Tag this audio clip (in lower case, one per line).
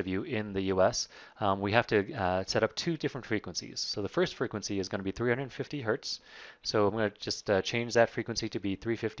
speech